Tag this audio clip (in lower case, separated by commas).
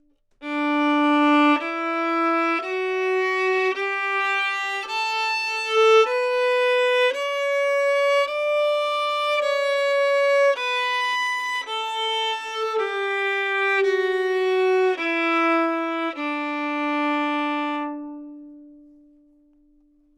bowed string instrument, music, musical instrument